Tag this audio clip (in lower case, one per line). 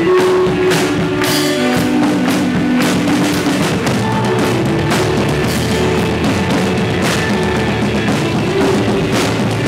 music